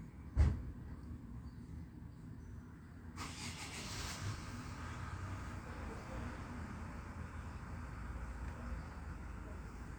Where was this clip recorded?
in a residential area